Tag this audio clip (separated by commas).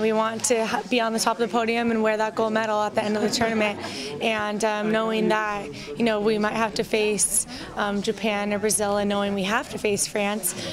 Female speech